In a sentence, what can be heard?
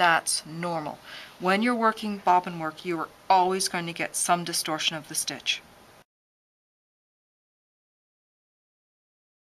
An adult female is speaking